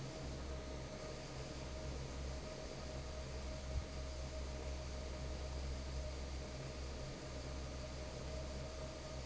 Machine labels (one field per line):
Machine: fan